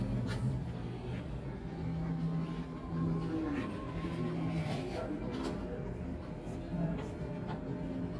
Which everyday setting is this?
cafe